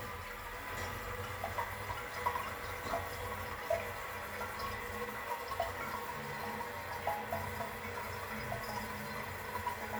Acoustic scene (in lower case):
restroom